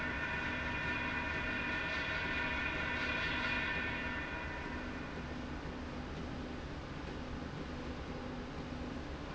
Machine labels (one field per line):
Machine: slide rail